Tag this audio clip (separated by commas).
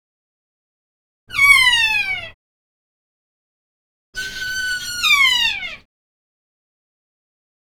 Wild animals, Animal, bird call, Bird